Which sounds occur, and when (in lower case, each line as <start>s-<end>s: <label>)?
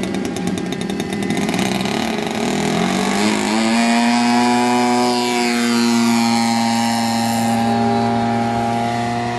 0.0s-9.3s: electric rotor drone